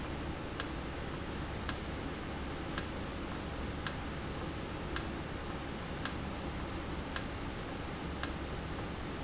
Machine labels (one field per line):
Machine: valve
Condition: normal